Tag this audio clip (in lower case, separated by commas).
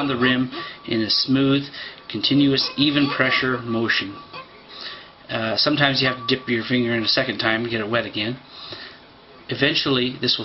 speech